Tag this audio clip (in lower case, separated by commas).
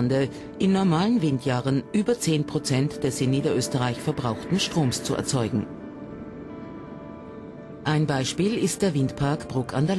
speech